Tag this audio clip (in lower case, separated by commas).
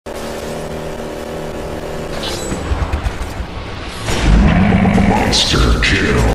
speech